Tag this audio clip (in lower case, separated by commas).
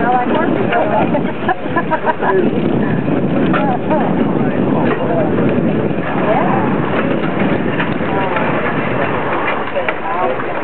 speech